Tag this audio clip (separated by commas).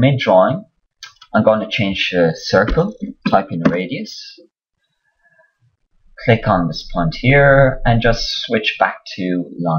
Speech